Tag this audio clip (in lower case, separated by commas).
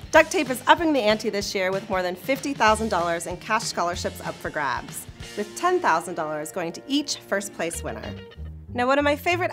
speech, music